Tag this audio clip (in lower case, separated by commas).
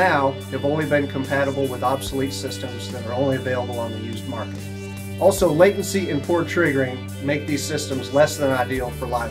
violin, speech, musical instrument, music